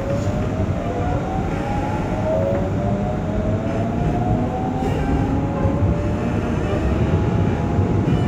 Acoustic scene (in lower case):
subway train